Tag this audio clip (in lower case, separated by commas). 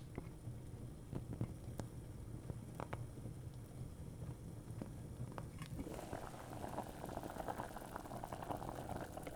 liquid, boiling